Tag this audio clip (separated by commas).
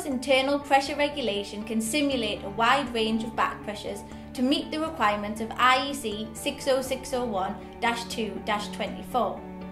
Speech, Music